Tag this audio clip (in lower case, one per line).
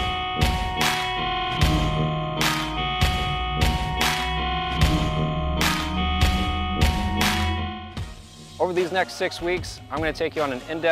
speech
music